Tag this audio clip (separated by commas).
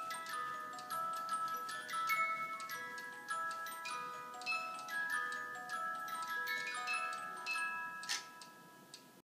Music, Tick